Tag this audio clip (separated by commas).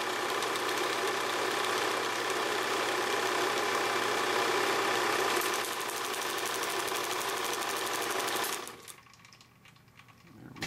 inside a small room